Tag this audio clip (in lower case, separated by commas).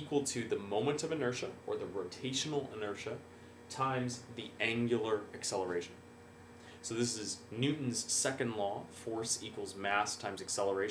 speech